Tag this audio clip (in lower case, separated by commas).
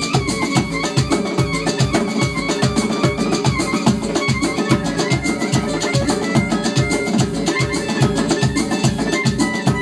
music, musical instrument, steelpan